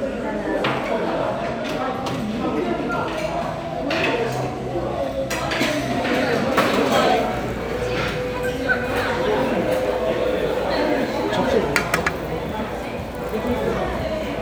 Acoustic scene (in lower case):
restaurant